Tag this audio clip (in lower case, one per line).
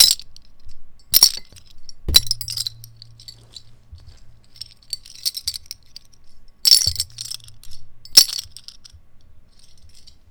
glass
clink